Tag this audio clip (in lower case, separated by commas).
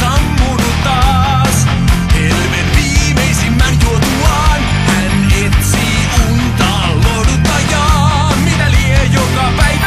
music